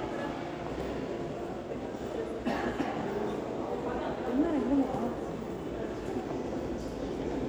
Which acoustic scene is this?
crowded indoor space